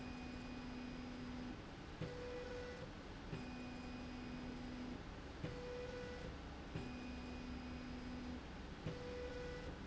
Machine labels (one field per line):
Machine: slide rail